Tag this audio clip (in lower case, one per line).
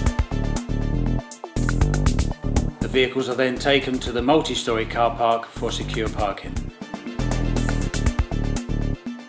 speech
music